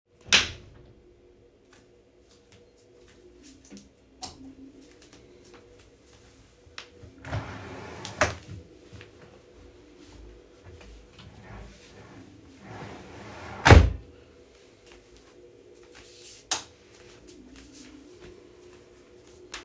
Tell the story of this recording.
I switched on lights , then walked towards drawer and opened the drawer , browsed for clothes grabbed one then closed the drawer and then walked back and turned off the light switch